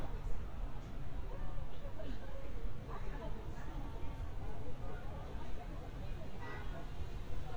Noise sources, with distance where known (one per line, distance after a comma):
background noise